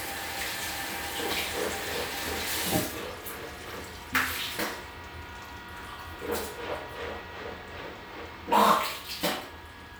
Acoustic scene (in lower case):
restroom